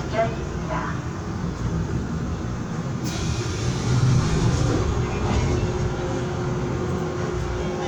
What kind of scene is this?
subway train